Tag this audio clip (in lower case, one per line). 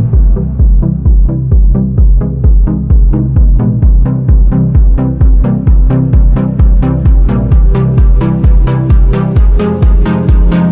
music